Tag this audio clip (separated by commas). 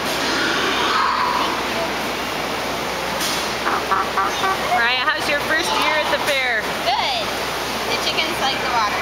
Speech, rooster